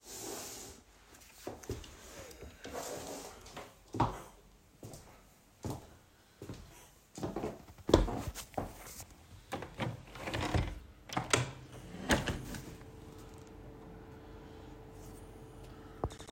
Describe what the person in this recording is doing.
I got up from my chair, walked to my window and opened it